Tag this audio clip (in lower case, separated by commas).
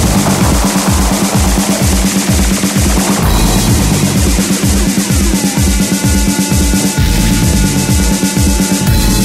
trance music, techno, rock music, progressive rock, electronic music, music